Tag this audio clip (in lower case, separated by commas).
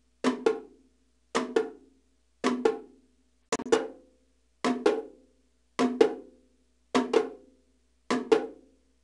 music, wood block